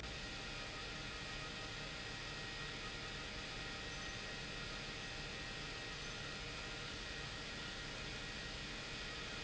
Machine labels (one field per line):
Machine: pump